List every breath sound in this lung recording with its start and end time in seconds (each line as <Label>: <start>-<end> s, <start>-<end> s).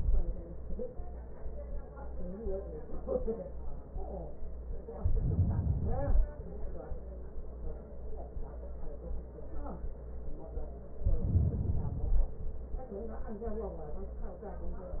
Inhalation: 4.94-6.33 s, 10.98-12.37 s